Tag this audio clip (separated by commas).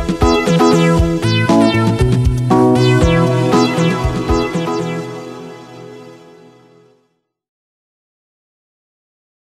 Music